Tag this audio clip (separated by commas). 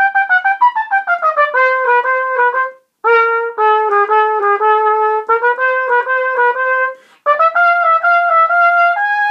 playing cornet